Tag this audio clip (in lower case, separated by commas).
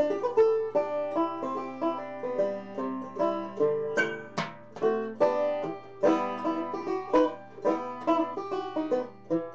music, banjo